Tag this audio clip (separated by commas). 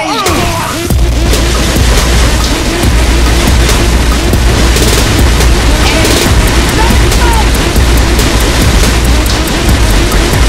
Speech, Music